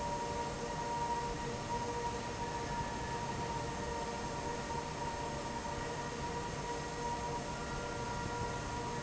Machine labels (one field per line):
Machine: fan